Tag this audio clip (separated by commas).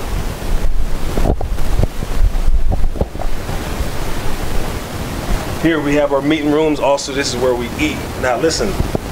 Speech